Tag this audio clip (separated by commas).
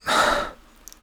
Breathing, Respiratory sounds